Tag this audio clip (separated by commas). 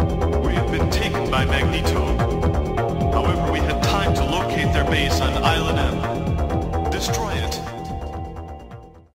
Music, Exciting music, Background music, Soundtrack music, Speech